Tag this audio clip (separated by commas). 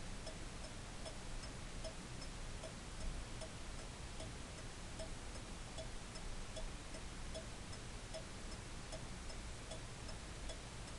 Tick-tock